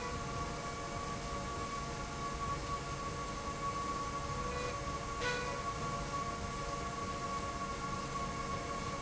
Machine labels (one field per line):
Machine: slide rail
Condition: normal